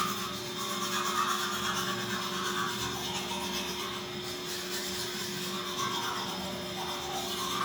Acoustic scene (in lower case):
restroom